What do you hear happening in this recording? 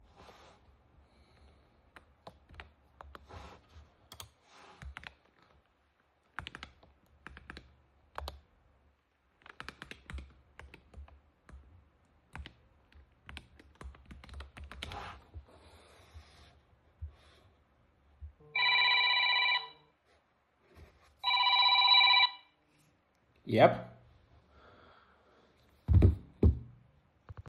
I was sitting at my computer typing questions on the internet. At that moment, my friend called me. I answered the call and said, "Hey.